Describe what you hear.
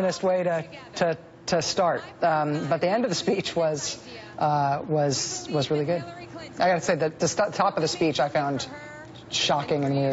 A woman is giving a monologue as a woman speaks in the distance as well